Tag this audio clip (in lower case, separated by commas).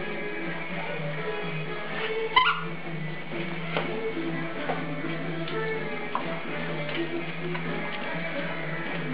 animal, cat, pets, music